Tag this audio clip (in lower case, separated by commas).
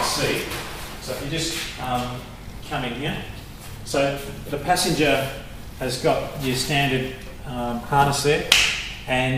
speech